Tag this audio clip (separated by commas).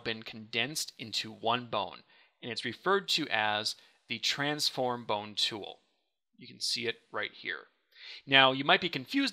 Speech